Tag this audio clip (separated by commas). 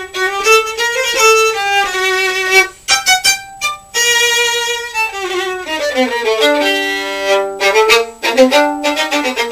Violin, Music, Musical instrument